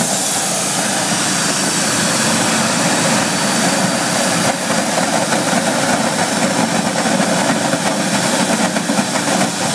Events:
0.0s-9.7s: engine
0.0s-2.2s: steam

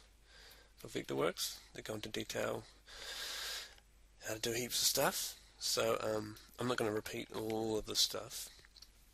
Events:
0.0s-9.1s: background noise
0.2s-0.7s: breathing
0.8s-1.6s: man speaking
1.7s-2.6s: man speaking
2.9s-3.8s: breathing
3.6s-3.8s: clicking
4.2s-5.4s: man speaking
5.6s-6.4s: man speaking
6.6s-8.5s: man speaking
7.4s-7.6s: clicking
8.4s-8.9s: human sounds

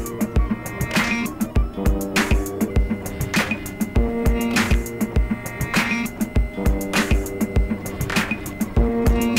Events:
0.0s-9.3s: music
0.0s-9.3s: printer

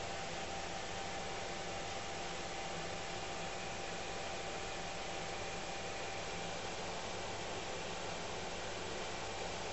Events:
0.0s-9.7s: mechanisms
0.0s-9.7s: microwave oven

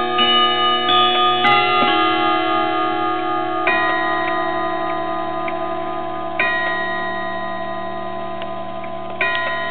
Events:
0.0s-9.7s: clock
1.1s-1.2s: tick
1.8s-2.0s: generic impact sounds
3.1s-3.3s: tick
3.9s-4.0s: tick
4.2s-4.3s: tick
4.9s-4.9s: tick
5.5s-5.6s: tick
6.6s-6.7s: tick
8.4s-8.5s: tick
8.8s-8.9s: tick
9.1s-9.1s: tick
9.3s-9.4s: generic impact sounds
9.4s-9.5s: tick

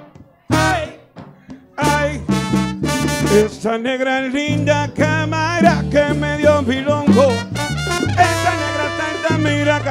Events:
0.0s-9.9s: music
0.4s-1.0s: male singing
1.8s-3.5s: male singing
3.6s-7.4s: male singing
8.1s-9.9s: male singing

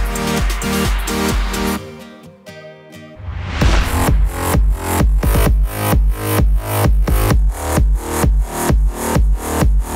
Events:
0.0s-9.9s: music
3.2s-4.1s: sound effect

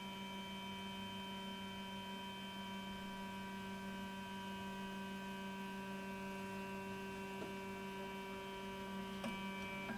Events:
0.0s-9.9s: mechanisms

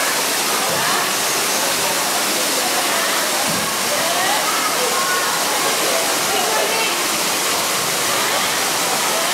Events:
0.0s-9.3s: hubbub
0.0s-9.3s: waterfall
0.7s-0.9s: generic impact sounds
3.5s-3.7s: generic impact sounds

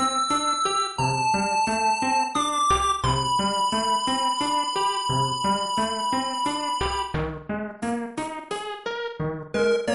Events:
0.0s-9.9s: music

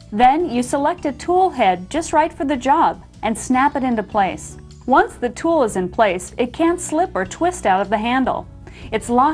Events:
0.0s-9.3s: music
0.1s-1.7s: woman speaking
0.9s-1.1s: tick
1.9s-2.9s: woman speaking
3.2s-4.6s: woman speaking
4.8s-6.3s: woman speaking
6.4s-8.4s: woman speaking
7.8s-7.9s: tick
8.6s-8.9s: breathing

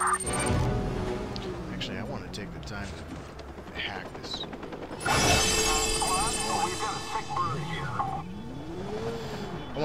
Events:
0.0s-0.7s: sound effect
0.0s-2.4s: revving
0.0s-3.4s: motorcycle
0.0s-9.8s: video game sound
1.3s-1.4s: tick
1.6s-3.0s: male speech
2.6s-2.7s: tick
3.4s-5.5s: helicopter
3.7s-4.5s: male speech
5.0s-7.8s: sound effect
6.0s-8.3s: radio
6.0s-8.2s: male speech
7.4s-9.8s: revving
7.5s-9.8s: motorcycle
8.0s-9.8s: car horn

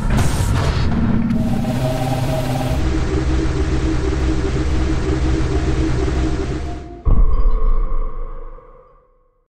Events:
0.0s-9.4s: sound effect

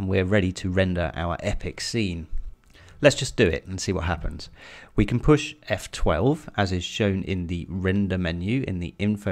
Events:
0.0s-2.3s: man speaking
0.0s-9.3s: mechanisms
2.3s-2.5s: generic impact sounds
2.6s-3.0s: breathing
3.0s-3.5s: man speaking
3.7s-4.5s: man speaking
4.5s-4.9s: breathing
4.9s-5.5s: man speaking
5.6s-6.4s: man speaking
6.6s-8.9s: man speaking
9.0s-9.3s: man speaking

